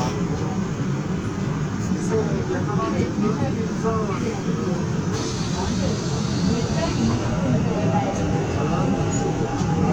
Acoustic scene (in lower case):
subway train